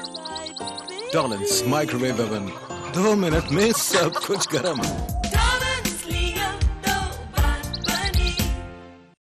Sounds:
music, speech

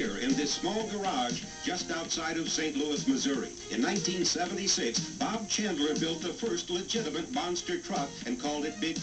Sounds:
music, speech

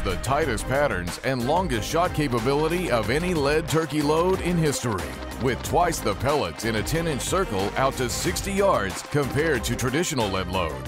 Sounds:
speech, music

